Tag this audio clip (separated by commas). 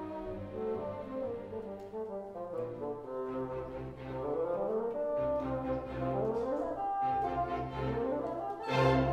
playing bassoon